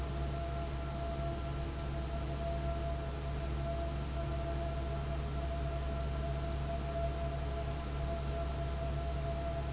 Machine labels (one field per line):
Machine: fan